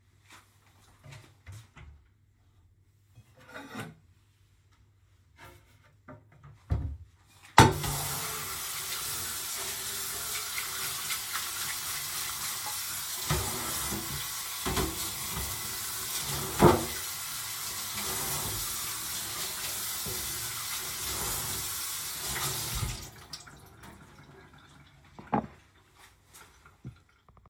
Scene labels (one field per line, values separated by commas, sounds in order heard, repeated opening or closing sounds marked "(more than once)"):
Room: bathroom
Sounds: wardrobe or drawer (more than once), running water